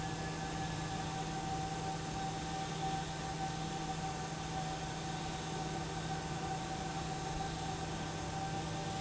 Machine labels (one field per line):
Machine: pump